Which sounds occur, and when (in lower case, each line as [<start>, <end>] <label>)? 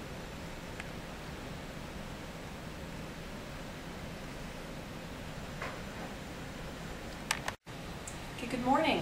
[0.01, 7.53] mechanisms
[0.75, 0.82] tick
[5.58, 5.76] tap
[7.07, 7.14] tick
[7.29, 7.34] tick
[7.44, 7.52] tick
[7.61, 9.01] mechanisms
[8.02, 8.08] tick
[8.40, 9.01] woman speaking